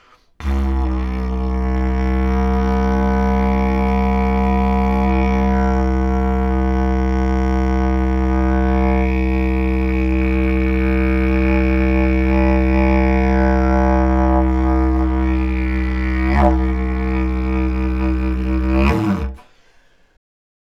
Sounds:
Musical instrument, Music

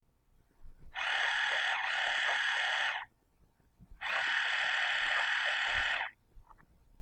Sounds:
Camera, Mechanisms

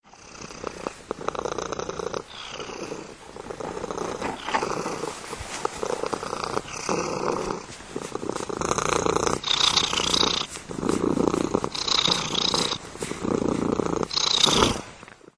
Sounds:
Cat, Purr, Animal, pets

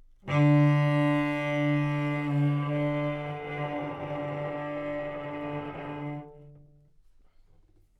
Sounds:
Bowed string instrument, Musical instrument, Music

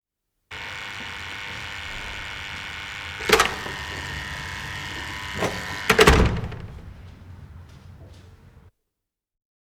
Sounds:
Slam, Alarm, home sounds, Door

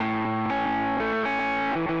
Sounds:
Musical instrument, Music, Plucked string instrument, Guitar

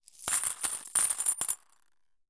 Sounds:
Coin (dropping), Domestic sounds

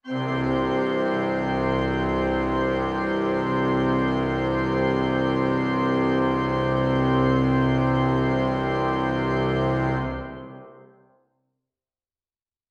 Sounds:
Music, Musical instrument, Organ, Keyboard (musical)

